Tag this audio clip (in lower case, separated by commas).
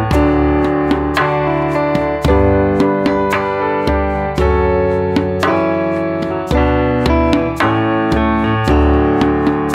music